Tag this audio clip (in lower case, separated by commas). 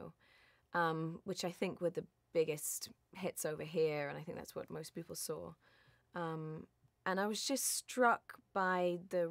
speech